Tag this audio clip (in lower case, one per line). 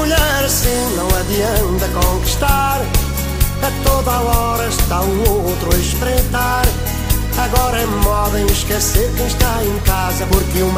music